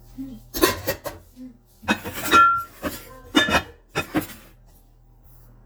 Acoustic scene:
kitchen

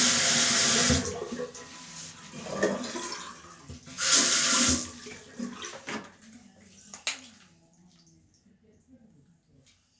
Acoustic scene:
restroom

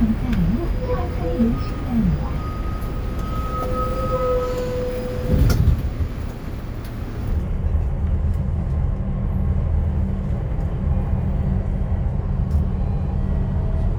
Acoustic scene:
bus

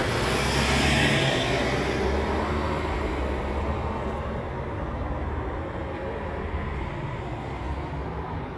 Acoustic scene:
street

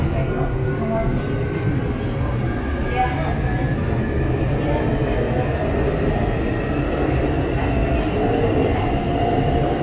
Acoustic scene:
subway train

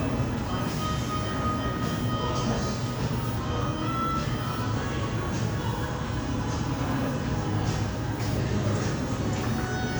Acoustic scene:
cafe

